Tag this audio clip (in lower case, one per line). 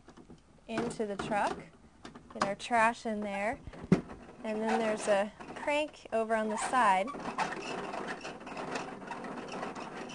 speech